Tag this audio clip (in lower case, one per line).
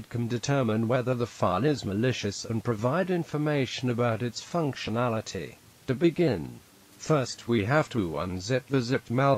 speech